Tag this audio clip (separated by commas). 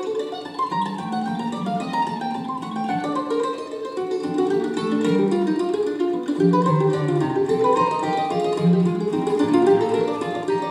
playing mandolin